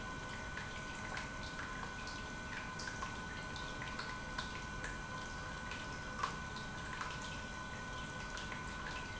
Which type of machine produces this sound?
pump